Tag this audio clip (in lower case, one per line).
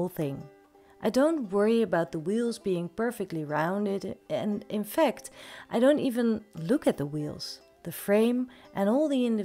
speech